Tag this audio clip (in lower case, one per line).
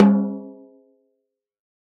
drum
musical instrument
snare drum
music
percussion